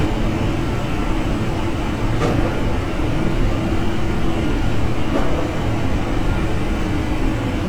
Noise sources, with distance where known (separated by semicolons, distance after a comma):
engine of unclear size, near; unidentified impact machinery, near